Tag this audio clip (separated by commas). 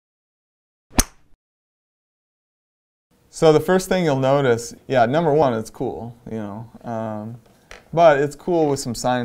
Speech